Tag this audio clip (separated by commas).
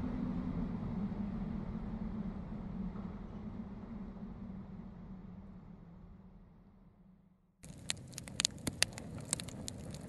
outside, rural or natural